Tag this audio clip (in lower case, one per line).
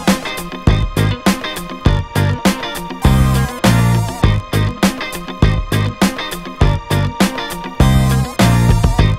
music